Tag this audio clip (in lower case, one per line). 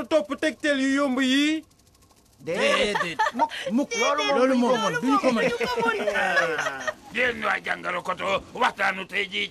snicker
speech